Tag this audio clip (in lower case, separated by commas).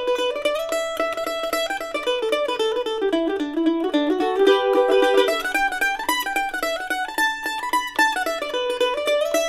music, mandolin, plucked string instrument